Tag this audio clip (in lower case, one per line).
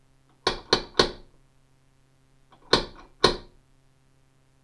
door
home sounds
knock